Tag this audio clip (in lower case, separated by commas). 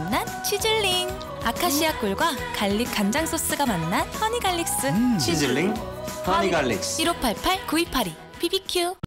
music, speech